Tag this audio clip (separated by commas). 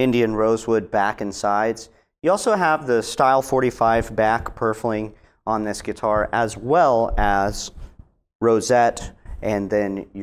Speech